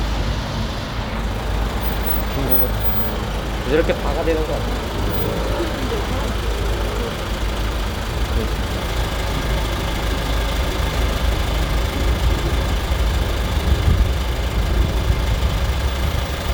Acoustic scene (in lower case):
street